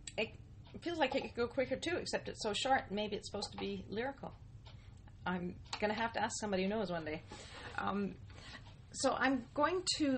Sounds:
Speech

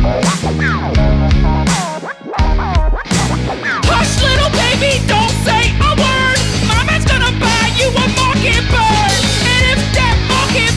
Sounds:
child singing

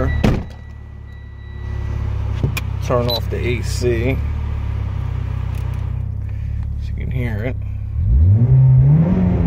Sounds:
Whir, Speech

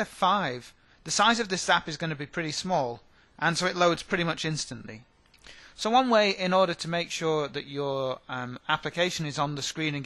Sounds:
Speech

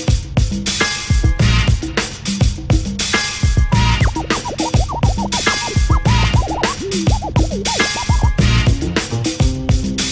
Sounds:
Music

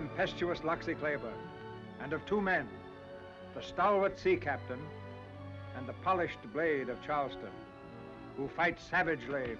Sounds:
Speech, Music

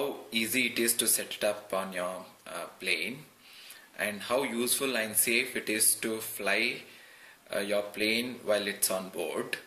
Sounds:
Speech

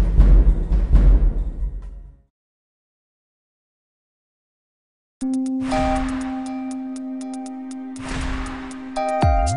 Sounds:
Exciting music, Music

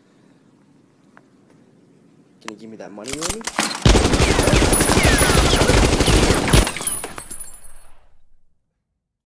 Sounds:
Speech

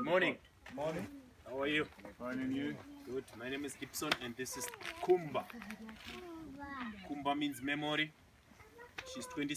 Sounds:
elephant trumpeting

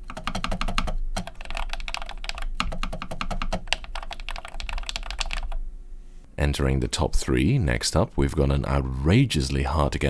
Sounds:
typing on computer keyboard

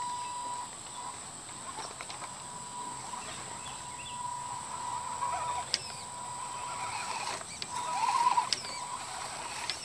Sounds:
Bird, Bird vocalization

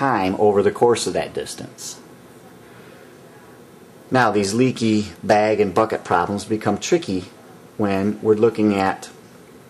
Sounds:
Speech, inside a small room

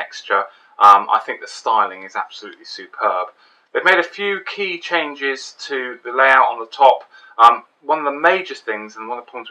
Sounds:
Speech

